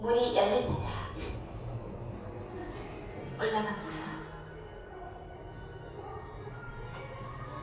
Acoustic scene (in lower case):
elevator